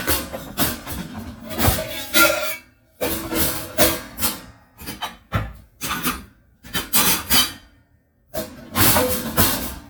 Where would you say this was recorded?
in a kitchen